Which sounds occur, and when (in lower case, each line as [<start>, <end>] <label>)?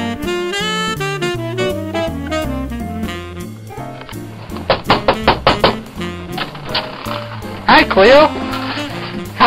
[0.00, 9.45] music
[4.61, 5.73] knock
[6.33, 7.27] generic impact sounds
[7.67, 8.25] man speaking
[8.43, 9.21] generic impact sounds